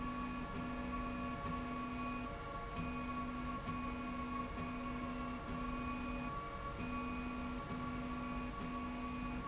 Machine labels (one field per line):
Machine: slide rail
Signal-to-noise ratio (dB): 0 dB